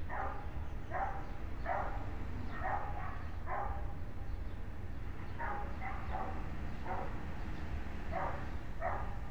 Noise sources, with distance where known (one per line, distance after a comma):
dog barking or whining